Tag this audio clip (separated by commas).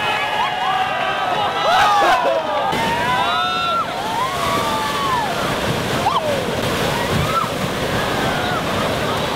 Stream, Waterfall